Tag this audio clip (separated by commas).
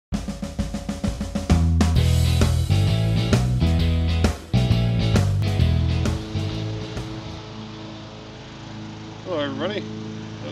Music, Speech